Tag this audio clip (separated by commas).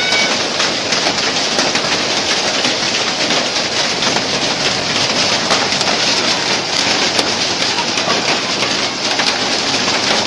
hail